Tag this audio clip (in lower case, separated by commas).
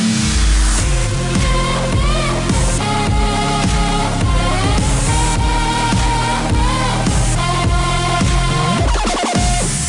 electronic dance music